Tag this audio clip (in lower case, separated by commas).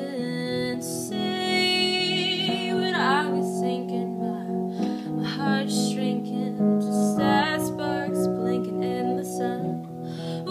piano, keyboard (musical), music